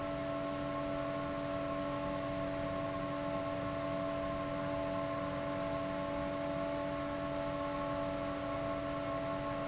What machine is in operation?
fan